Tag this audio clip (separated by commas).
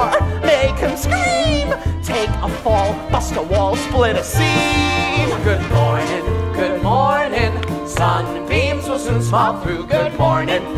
Music, Opera